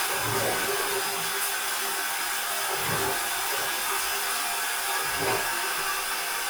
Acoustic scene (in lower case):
restroom